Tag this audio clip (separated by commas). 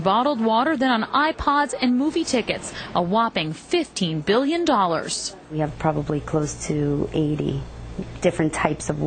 Speech